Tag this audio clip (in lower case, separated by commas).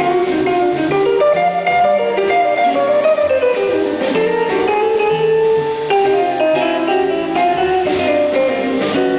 bowed string instrument, drum, music, drum kit, jazz, musical instrument, percussion